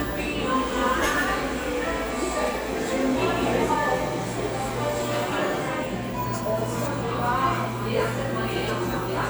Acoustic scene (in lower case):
cafe